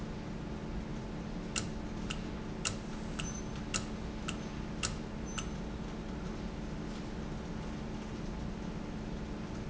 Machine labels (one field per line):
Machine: valve